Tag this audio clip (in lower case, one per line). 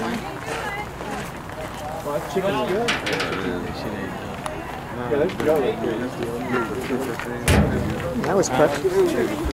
speech